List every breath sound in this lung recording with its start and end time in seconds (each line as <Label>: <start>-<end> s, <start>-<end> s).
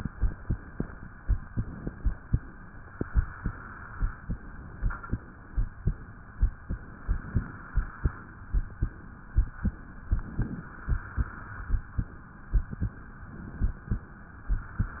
Inhalation: 1.47-2.21 s, 4.83-5.70 s, 10.09-10.69 s, 13.28-14.02 s
Exhalation: 2.83-4.26 s, 6.70-8.47 s, 10.71-11.93 s, 14.54-15.00 s